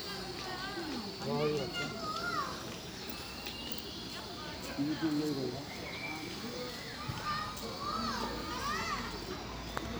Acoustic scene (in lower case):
park